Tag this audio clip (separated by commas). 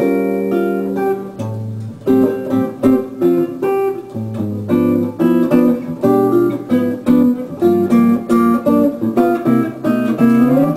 Musical instrument, Guitar, Music